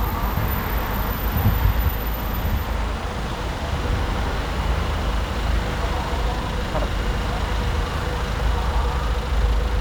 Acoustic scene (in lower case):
street